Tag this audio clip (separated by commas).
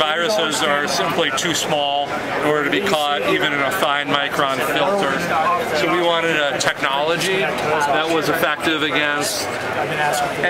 Speech